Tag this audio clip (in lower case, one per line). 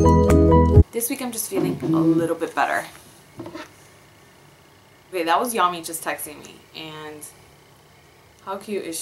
speech
music